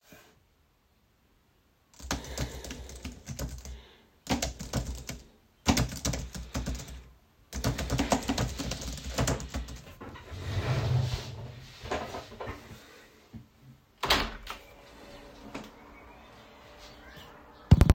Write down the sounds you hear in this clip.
keyboard typing, window